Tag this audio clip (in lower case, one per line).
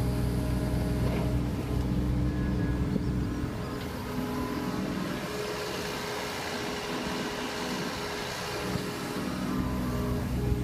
vehicle